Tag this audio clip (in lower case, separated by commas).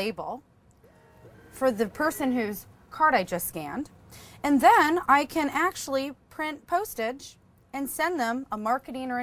speech